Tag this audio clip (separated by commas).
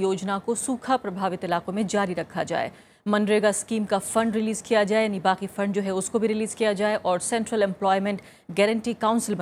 Speech